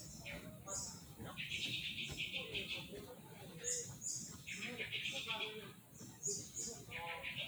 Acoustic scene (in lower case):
park